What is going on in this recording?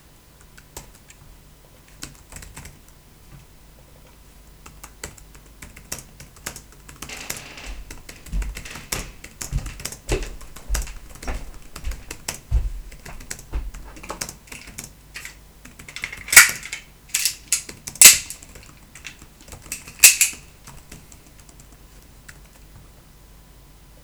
Typing on Laptop, then footstepps approach in background then a metallic clicking soud from office utensiles is heared multible times.